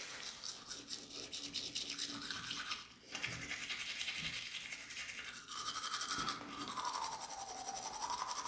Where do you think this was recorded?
in a restroom